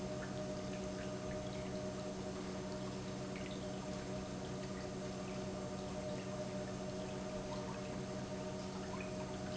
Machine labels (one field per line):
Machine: pump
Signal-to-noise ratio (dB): 0 dB